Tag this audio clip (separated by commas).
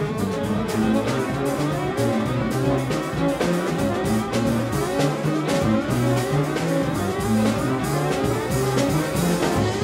Orchestra, Brass instrument, Trumpet, Music, Musical instrument